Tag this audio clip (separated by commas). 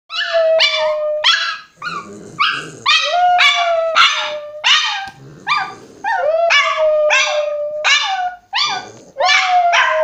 dog howling